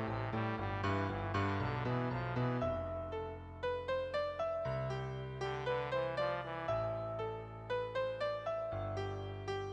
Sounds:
music
trombone

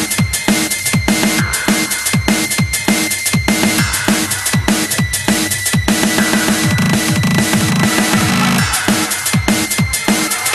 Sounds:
music

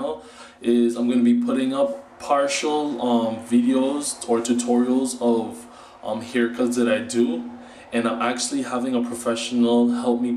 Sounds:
speech

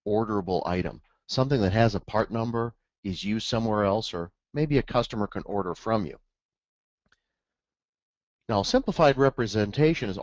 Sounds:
speech

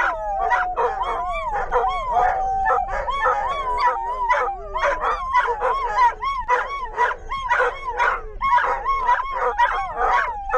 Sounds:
dog whimpering

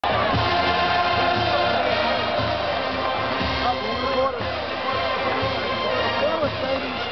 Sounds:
speech
music

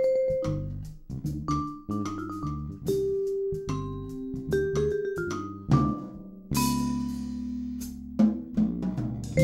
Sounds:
mallet percussion
glockenspiel
xylophone
drum
percussion

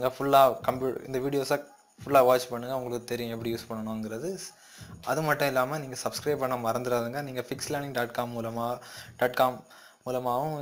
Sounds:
speech

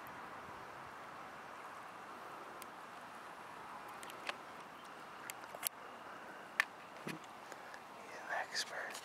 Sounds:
speech

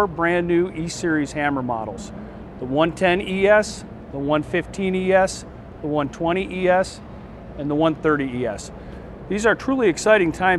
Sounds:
speech

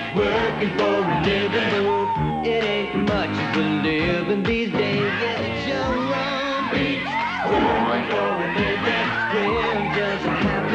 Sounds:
music

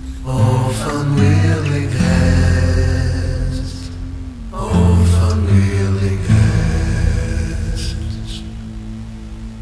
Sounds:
music
male singing

